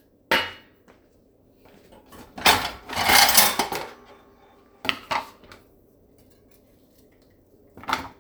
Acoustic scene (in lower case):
kitchen